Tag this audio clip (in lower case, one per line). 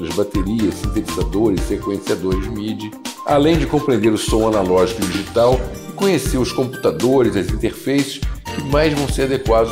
speech
music